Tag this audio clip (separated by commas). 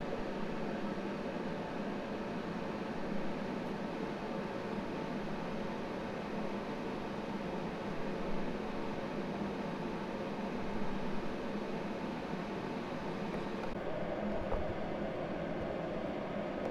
Mechanisms